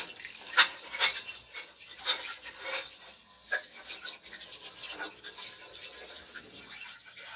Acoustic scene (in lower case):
kitchen